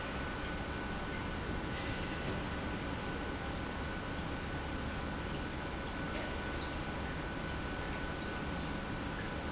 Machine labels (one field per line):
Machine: pump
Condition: normal